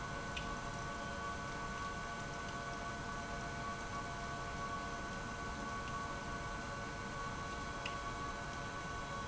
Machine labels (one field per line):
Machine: pump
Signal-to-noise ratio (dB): 0 dB